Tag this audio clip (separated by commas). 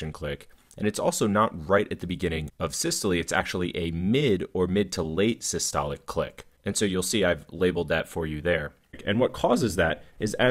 Speech